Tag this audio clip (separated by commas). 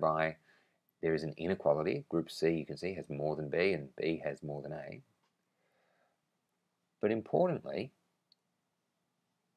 inside a small room, Speech